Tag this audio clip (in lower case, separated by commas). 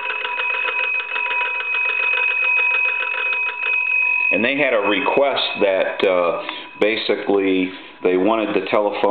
telephone bell ringing, speech